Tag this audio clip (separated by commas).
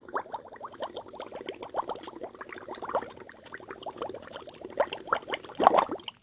Liquid